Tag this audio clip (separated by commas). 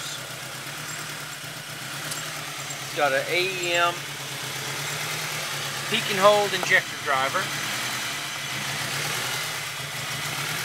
Speech